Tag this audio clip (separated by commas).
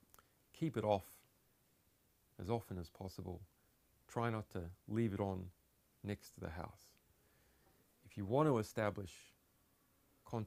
Speech